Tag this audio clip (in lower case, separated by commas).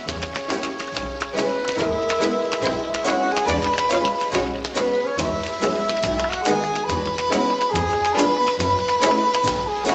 tap dancing